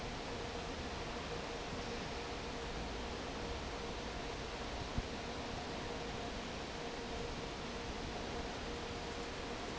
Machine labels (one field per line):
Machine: fan